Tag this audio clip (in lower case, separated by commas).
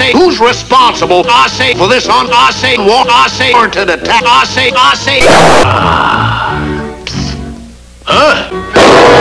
music, speech